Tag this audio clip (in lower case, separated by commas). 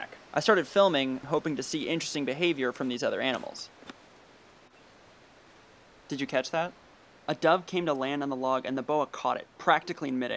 speech